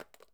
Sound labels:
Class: object falling